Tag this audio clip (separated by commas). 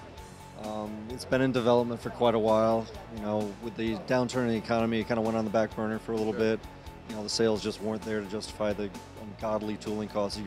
Music, Speech